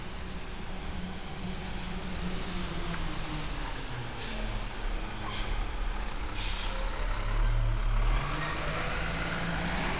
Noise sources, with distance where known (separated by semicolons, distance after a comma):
large-sounding engine, near